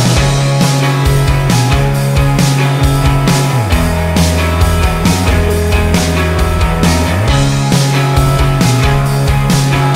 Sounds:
music

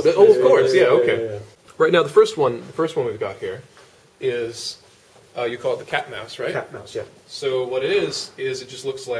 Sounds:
speech

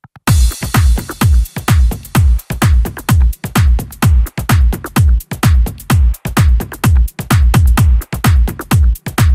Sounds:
music

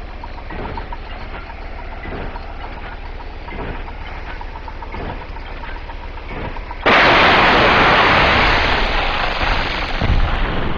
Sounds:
mechanisms

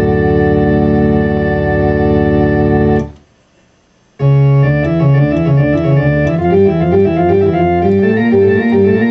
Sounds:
piano, electric piano, playing electronic organ, organ, music, synthesizer, keyboard (musical), musical instrument, electronic organ

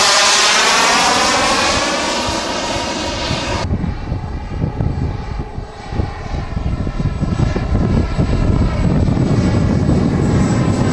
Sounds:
vehicle, aircraft, propeller, aircraft engine

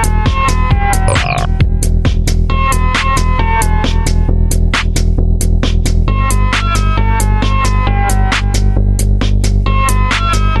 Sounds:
disco, music

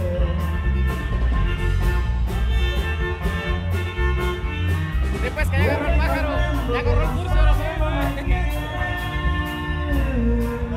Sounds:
fiddle, music, musical instrument, speech

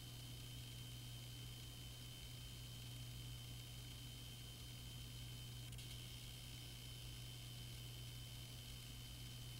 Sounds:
white noise

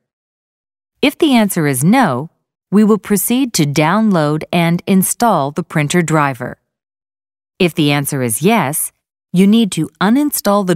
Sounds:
speech

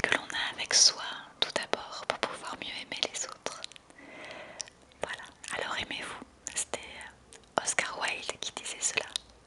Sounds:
speech, whispering

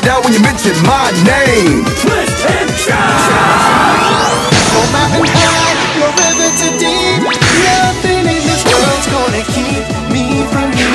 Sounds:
music

